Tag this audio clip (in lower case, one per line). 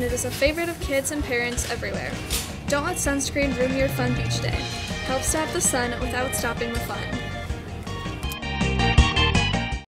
speech
music